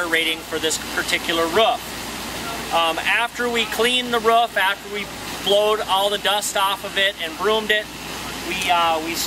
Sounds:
speech

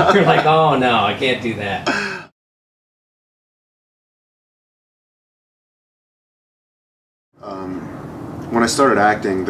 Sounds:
sigh

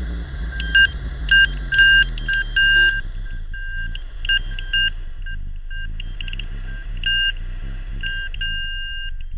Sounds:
radio

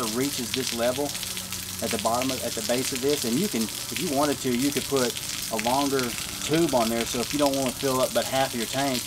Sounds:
speech

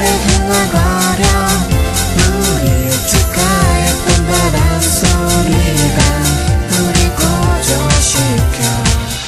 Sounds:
exciting music, music, singing

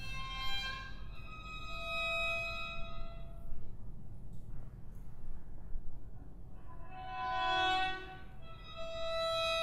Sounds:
fiddle, music, musical instrument

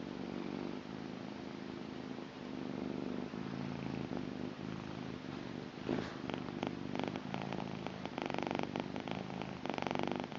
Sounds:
cat purring

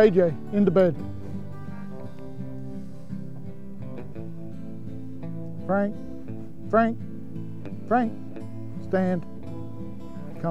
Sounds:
music, speech

